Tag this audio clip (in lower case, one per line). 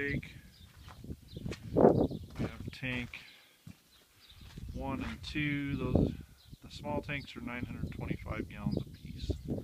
speech